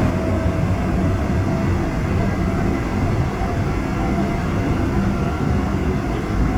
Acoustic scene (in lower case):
subway train